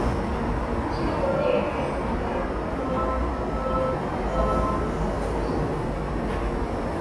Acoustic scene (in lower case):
subway station